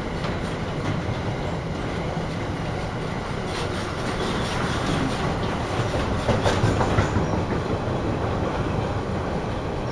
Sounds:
train whistling

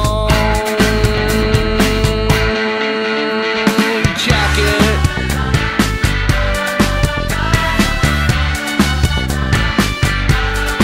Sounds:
Grunge

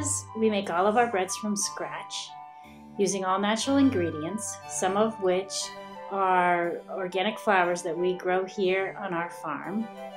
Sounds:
Speech, Music

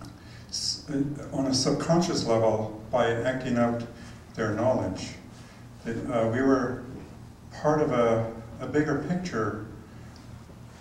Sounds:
Speech

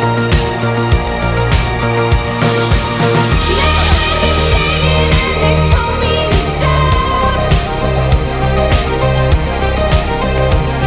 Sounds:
Background music, Music

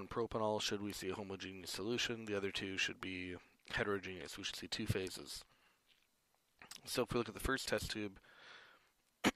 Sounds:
Speech

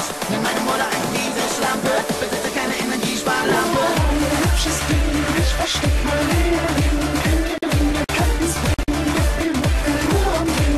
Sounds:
Music

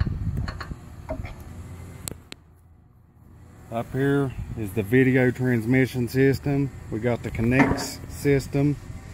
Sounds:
Speech

